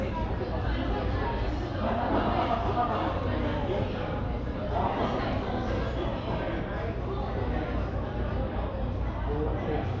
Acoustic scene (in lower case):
cafe